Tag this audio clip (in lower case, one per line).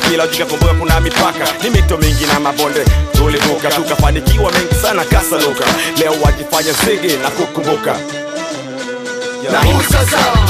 hip hop music
music of africa
singing
folk music
music
song
rapping